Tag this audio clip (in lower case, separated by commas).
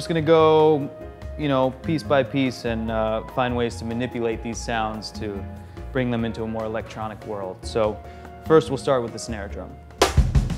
percussion, snare drum, drum